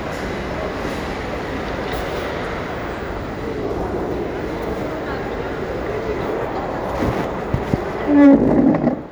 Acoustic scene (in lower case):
crowded indoor space